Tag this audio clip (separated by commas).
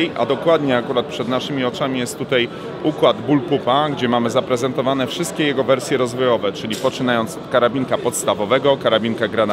Speech